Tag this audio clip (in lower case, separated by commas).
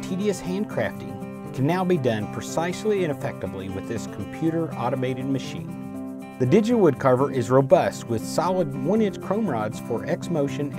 speech, music